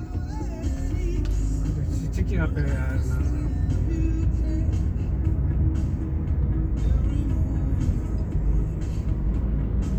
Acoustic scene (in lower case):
car